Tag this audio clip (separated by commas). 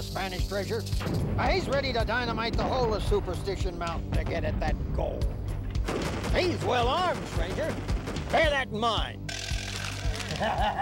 Music, Speech